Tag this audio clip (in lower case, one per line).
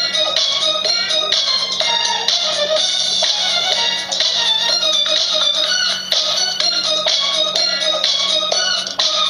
exciting music
music